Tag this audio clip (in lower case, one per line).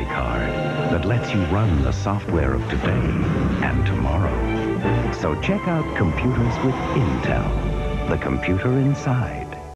music
speech